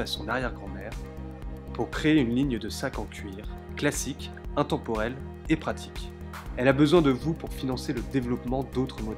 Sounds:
Speech, Music

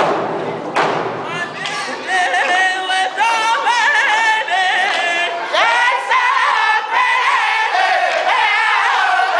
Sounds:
Thump, Music

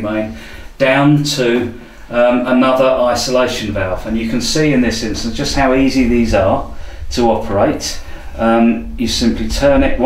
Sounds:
Speech

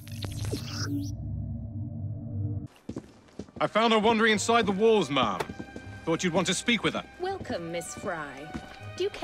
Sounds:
Speech, Music, inside a large room or hall

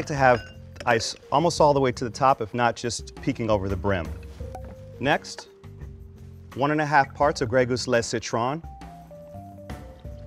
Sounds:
Music, Speech

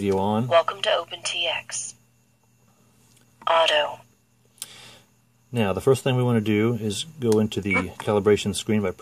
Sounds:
Speech, inside a small room

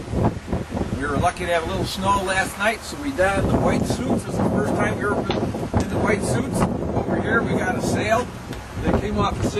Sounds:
Speech

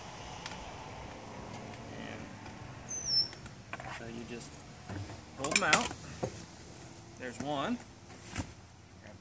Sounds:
Speech

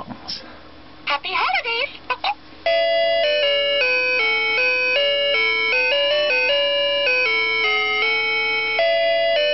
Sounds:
Speech

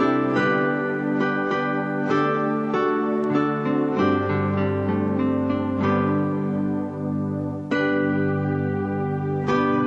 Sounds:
Music

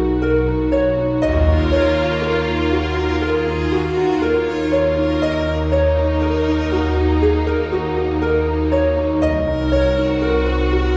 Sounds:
Music, Background music

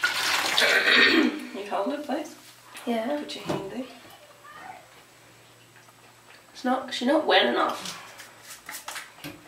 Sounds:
Speech

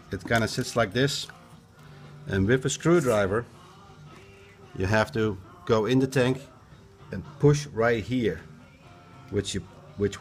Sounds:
Music, Speech

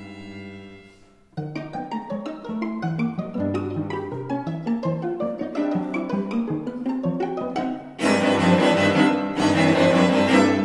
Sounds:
Cello, Bowed string instrument, Violin, Music, Musical instrument

